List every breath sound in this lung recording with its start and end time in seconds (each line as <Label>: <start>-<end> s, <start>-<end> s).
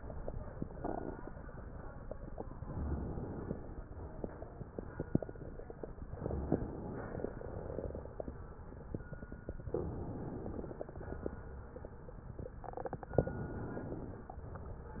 Inhalation: 2.55-3.74 s, 6.19-7.30 s, 9.71-10.82 s, 13.17-14.27 s
Exhalation: 3.74-4.85 s, 7.34-8.45 s, 10.82-11.92 s, 14.27-15.00 s